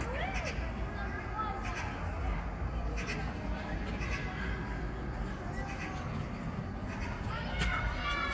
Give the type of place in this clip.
park